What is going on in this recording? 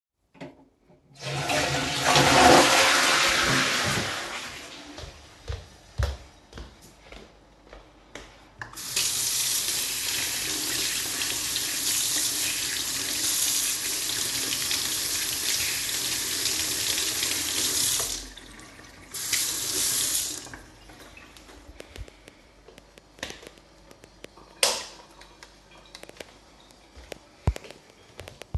I flushed the toilet, went to the sink, turned on the sink, washed my hands, turned of the sink, used soap, turned on the sink to finish washing, turned it off again and switched off the lights.